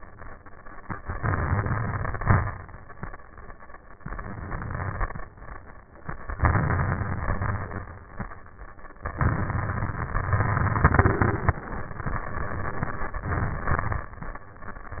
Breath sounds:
Inhalation: 1.06-2.41 s, 3.97-5.32 s, 6.37-7.83 s, 9.13-14.11 s
Crackles: 1.06-2.41 s, 3.97-5.32 s, 6.37-7.83 s, 9.13-14.11 s

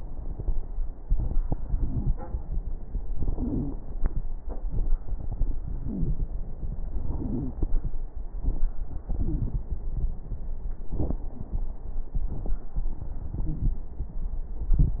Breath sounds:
Wheeze: 3.32-3.72 s, 5.80-6.21 s, 7.14-7.54 s

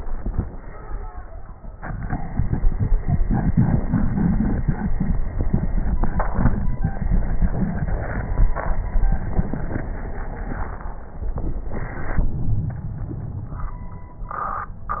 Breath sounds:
Exhalation: 0.02-0.51 s
Crackles: 0.02-0.51 s

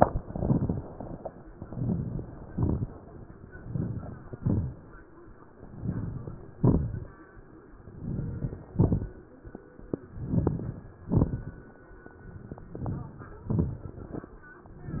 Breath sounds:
Inhalation: 1.53-2.39 s, 3.50-4.36 s, 5.57-6.57 s, 7.87-8.75 s, 10.10-10.98 s, 12.59-13.47 s, 14.73-15.00 s
Exhalation: 0.20-1.06 s, 2.40-3.26 s, 4.35-5.21 s, 6.59-7.47 s, 8.73-9.61 s, 10.99-11.87 s, 13.48-14.36 s
Crackles: 0.20-1.06 s, 1.53-2.39 s, 2.40-3.26 s, 3.48-4.34 s, 4.35-5.21 s, 5.58-6.56 s, 6.59-7.45 s, 7.86-8.72 s, 8.73-9.59 s, 10.10-10.95 s, 10.98-11.84 s, 12.58-13.44 s, 13.51-14.37 s, 14.72-15.00 s

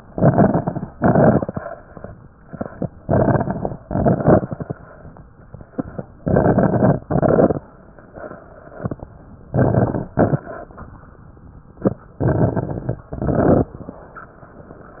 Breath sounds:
Inhalation: 0.07-0.88 s, 2.96-3.76 s, 6.18-6.98 s, 9.51-10.08 s, 12.22-13.05 s
Exhalation: 0.89-1.69 s, 3.83-4.63 s, 7.09-7.67 s, 10.17-10.74 s, 13.13-13.81 s
Crackles: 0.07-0.88 s, 0.89-1.69 s, 2.96-3.76 s, 3.83-4.63 s, 6.18-6.98 s, 7.09-7.67 s, 9.51-10.08 s, 10.17-10.74 s, 12.22-13.05 s, 13.13-13.81 s

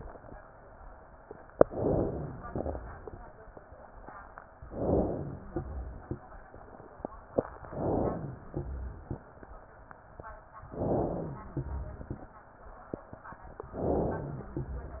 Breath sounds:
Inhalation: 1.61-2.47 s, 4.65-5.50 s, 7.70-8.56 s, 10.66-11.52 s, 13.68-14.54 s
Exhalation: 2.50-3.16 s, 5.52-6.18 s, 8.56-9.19 s, 11.55-12.30 s, 14.57-15.00 s
Wheeze: 5.18-5.84 s, 11.01-11.66 s, 14.00-14.66 s
Rhonchi: 2.50-3.16 s, 5.52-6.18 s, 8.56-9.19 s, 11.59-12.23 s, 14.52-15.00 s

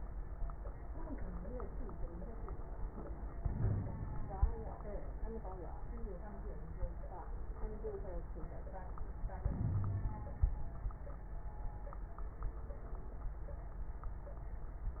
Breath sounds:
Inhalation: 3.37-4.04 s, 9.46-10.41 s
Exhalation: 4.04-4.78 s
Wheeze: 3.54-3.86 s, 9.72-10.12 s
Crackles: 4.04-4.78 s

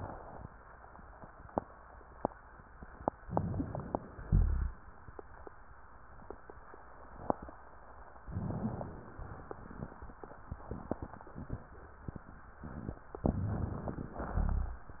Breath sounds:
Inhalation: 3.26-4.20 s, 8.24-9.19 s, 13.24-14.31 s
Exhalation: 4.20-4.74 s, 14.36-15.00 s
Rhonchi: 4.20-4.74 s, 14.36-15.00 s

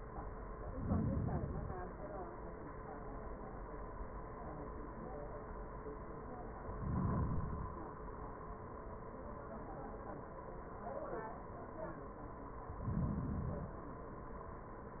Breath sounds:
Inhalation: 0.53-1.92 s, 6.60-7.99 s, 12.56-13.95 s

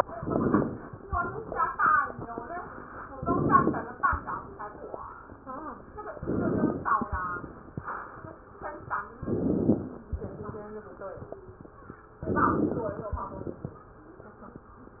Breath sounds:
Inhalation: 0.08-0.97 s, 3.09-3.99 s, 6.21-7.10 s, 9.24-10.09 s, 12.22-13.11 s
Exhalation: 10.11-10.60 s, 13.11-13.91 s

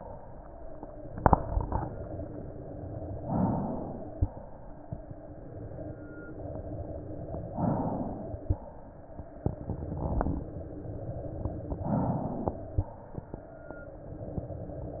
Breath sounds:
Inhalation: 3.17-4.13 s, 7.50-8.44 s, 11.71-12.71 s
Exhalation: 4.15-5.05 s, 8.40-9.40 s, 12.67-13.47 s
Crackles: 4.13-5.07 s, 8.41-9.40 s, 9.41-10.55 s, 11.69-12.69 s, 12.71-13.47 s

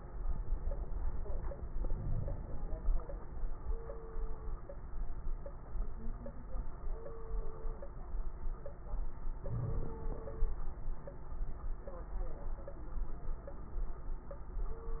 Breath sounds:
Inhalation: 1.78-2.99 s, 9.40-10.50 s
Crackles: 1.78-2.99 s, 9.40-10.50 s

